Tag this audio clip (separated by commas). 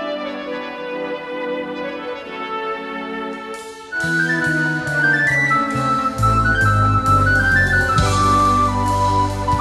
Music